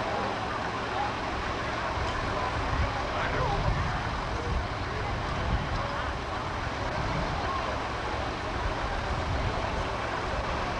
A roaring sound is present, people are talking in the background, and water is splashing gently